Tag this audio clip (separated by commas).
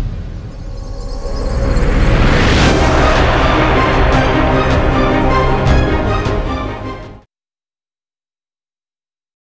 Theme music, Music